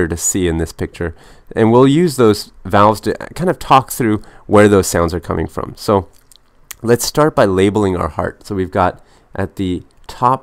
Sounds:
Speech

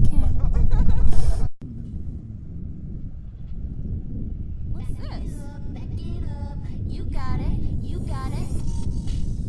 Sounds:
Music, Speech, Gurgling

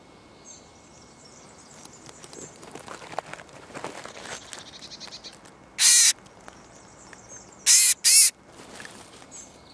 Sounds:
Animal

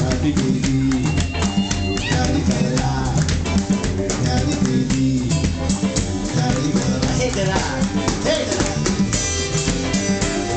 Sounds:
Speech, Music

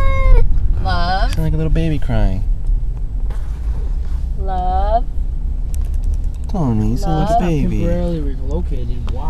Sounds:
Animal, Speech, Domestic animals

